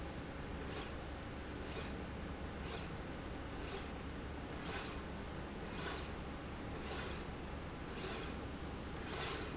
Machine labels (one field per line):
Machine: slide rail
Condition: normal